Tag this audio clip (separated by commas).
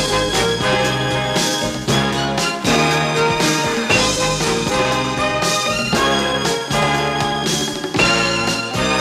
Music